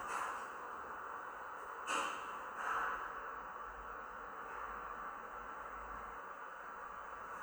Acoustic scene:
elevator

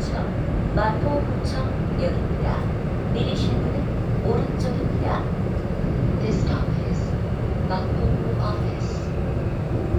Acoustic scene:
subway train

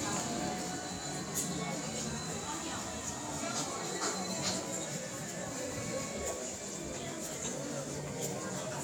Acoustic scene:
crowded indoor space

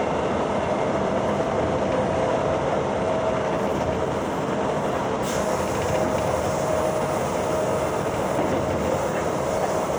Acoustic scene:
subway train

